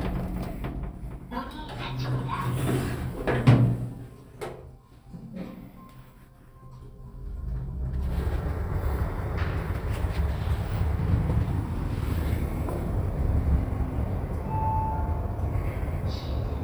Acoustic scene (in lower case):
elevator